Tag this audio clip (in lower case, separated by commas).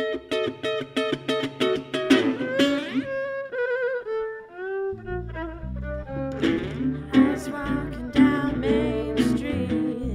bowed string instrument, fiddle